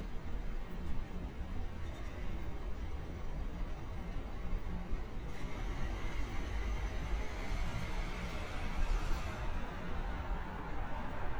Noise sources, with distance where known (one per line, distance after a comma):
large-sounding engine